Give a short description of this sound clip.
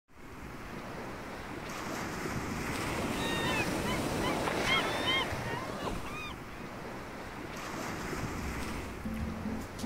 Waves are crashing and seagulls are chirping